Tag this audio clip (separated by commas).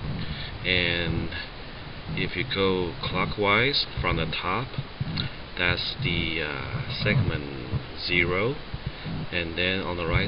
Speech